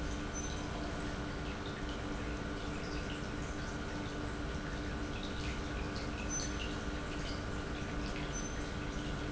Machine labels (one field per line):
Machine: pump